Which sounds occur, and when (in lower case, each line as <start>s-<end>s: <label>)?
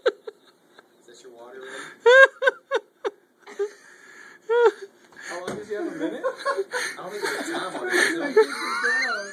0.0s-0.1s: laughter
0.0s-9.3s: conversation
0.0s-9.3s: mechanisms
0.2s-0.5s: laughter
0.7s-1.2s: laughter
1.0s-1.9s: man speaking
1.5s-1.9s: breathing
2.0s-2.2s: laughter
2.4s-2.8s: laughter
3.0s-3.1s: laughter
3.4s-4.3s: breathing
3.4s-3.7s: laughter
4.4s-4.7s: laughter
5.1s-5.5s: breathing
5.1s-6.2s: man speaking
5.4s-5.6s: generic impact sounds
5.7s-6.8s: laughter
6.7s-7.0s: breathing
6.9s-9.3s: man speaking
7.1s-7.9s: laughter
7.1s-7.7s: breathing
7.9s-8.1s: breathing
8.2s-9.3s: laughter